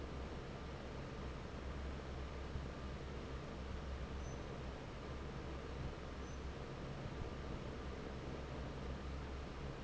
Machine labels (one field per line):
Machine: fan